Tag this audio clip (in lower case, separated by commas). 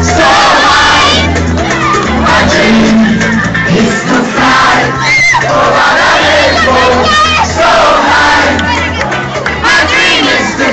speech, music